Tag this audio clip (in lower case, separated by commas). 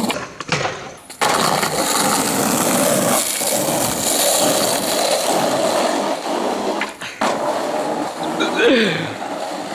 skateboard, outside, urban or man-made, skateboarding